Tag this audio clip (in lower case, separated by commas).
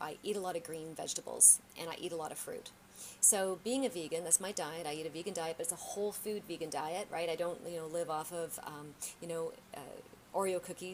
speech